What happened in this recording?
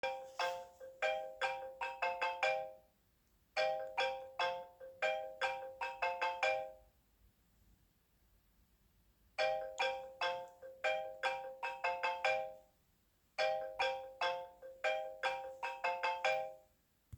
My phone started ringing. I did not answer it for a short period of time, then I picked up.